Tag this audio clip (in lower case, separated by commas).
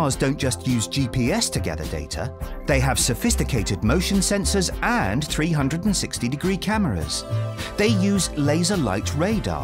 music, speech